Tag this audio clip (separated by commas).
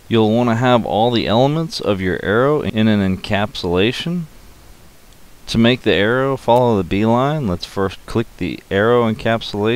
Speech